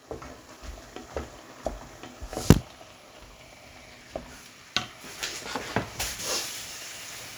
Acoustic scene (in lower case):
kitchen